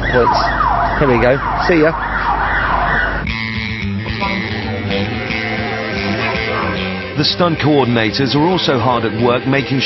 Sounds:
emergency vehicle, police car (siren), music, speech

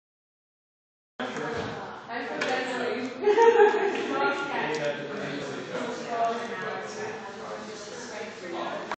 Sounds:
speech

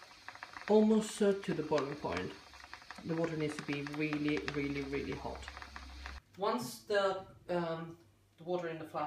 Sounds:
boiling, liquid, speech

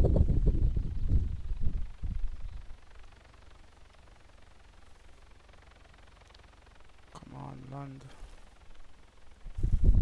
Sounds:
speech

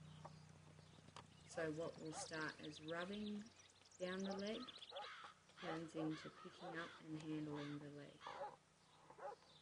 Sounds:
animal, outside, rural or natural, speech

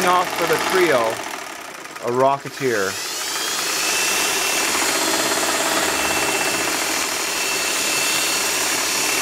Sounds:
sewing machine, speech

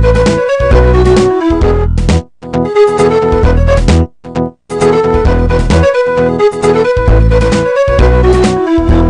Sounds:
music

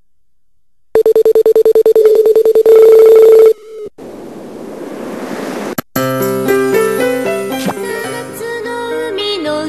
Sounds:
music

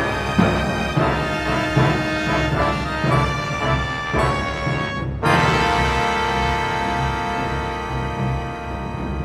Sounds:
drum, bass drum, musical instrument, music

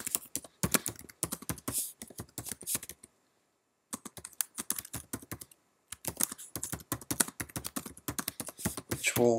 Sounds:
computer keyboard

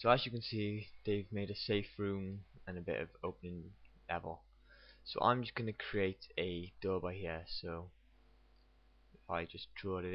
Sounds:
speech

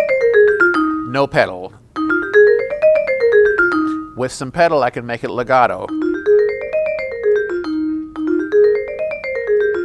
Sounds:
musical instrument, music, marimba, speech, vibraphone

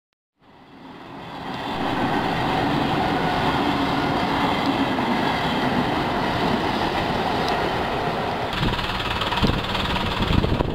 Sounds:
railroad car, rail transport, vehicle

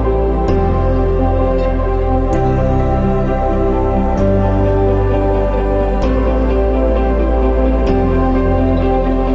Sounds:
new-age music, music

